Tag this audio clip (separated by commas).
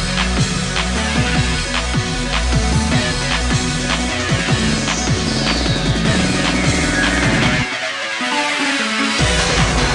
Music